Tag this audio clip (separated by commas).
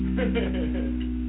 Human voice, Laughter